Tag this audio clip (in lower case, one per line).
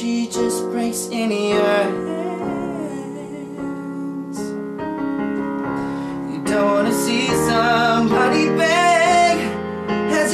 music